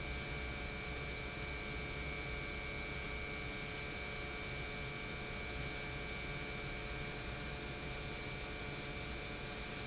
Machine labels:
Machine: pump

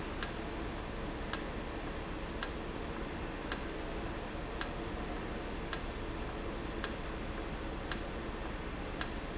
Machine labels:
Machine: valve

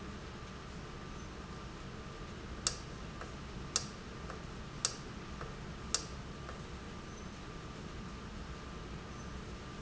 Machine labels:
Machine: valve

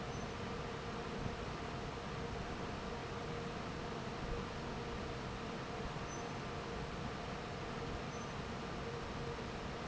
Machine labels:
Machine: fan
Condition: normal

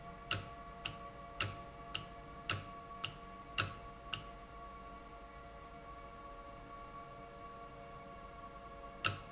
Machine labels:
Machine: valve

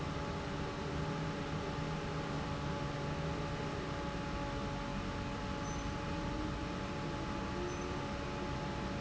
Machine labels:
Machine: fan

